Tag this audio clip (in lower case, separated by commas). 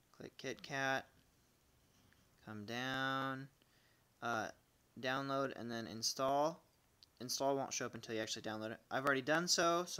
speech, inside a small room